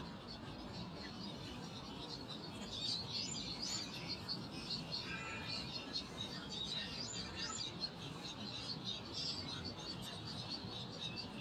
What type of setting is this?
park